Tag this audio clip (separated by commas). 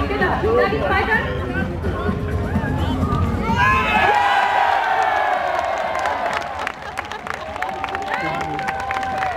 Crowd, Cheering